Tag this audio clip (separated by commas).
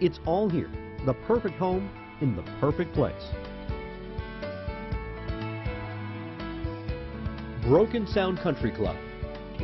Music, Speech